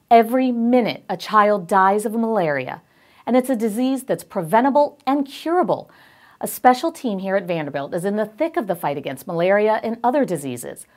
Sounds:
speech

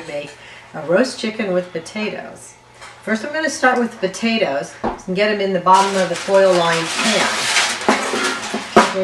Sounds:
speech

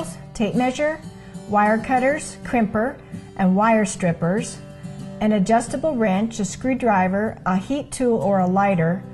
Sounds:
music
speech

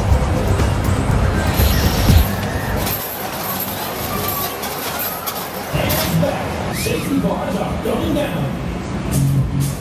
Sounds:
speech
music

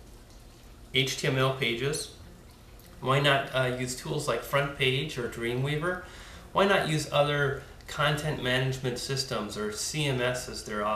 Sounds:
speech

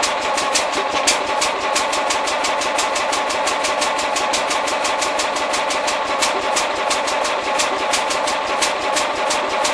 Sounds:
engine
medium engine (mid frequency)

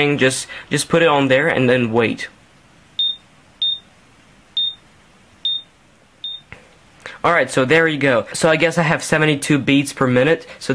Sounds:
inside a small room
speech

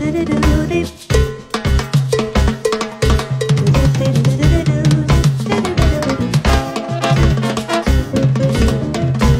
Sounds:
playing timbales

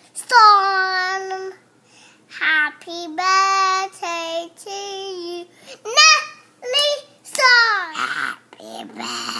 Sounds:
singing
child speech
speech
inside a small room

